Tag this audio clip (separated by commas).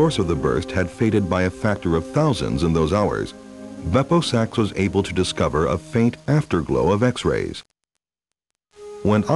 Speech synthesizer, Speech, Music